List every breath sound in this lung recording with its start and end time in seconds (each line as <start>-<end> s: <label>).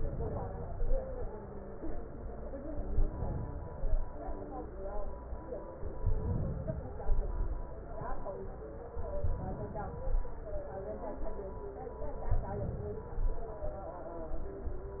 0.00-0.95 s: inhalation
2.93-3.95 s: inhalation
6.02-7.05 s: inhalation
8.97-10.09 s: inhalation
12.29-13.41 s: inhalation